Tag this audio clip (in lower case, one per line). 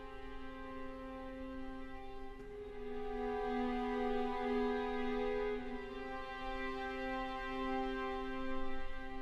music